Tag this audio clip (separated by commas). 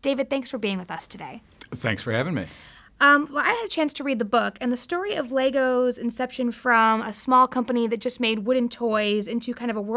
Speech